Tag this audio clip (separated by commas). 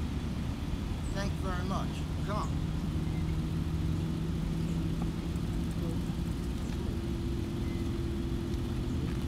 Speech